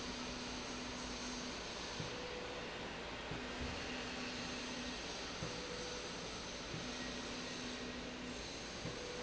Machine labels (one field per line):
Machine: slide rail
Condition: normal